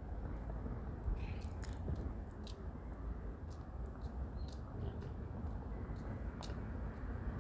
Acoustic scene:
residential area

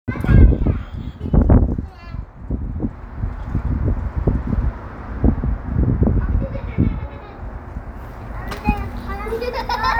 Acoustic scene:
residential area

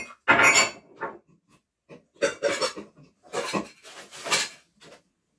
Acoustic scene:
kitchen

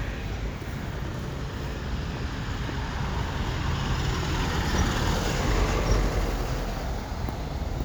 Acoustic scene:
street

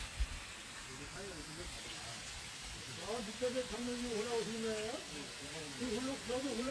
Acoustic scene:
park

